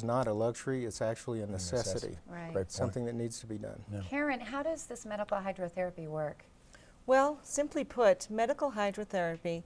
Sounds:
speech

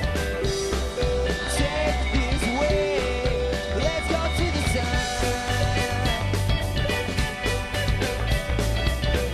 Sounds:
music

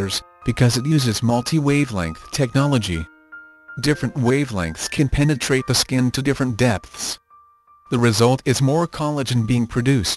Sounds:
music, speech

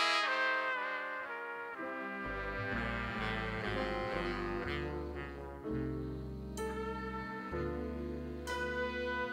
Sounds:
saxophone, brass instrument, playing saxophone

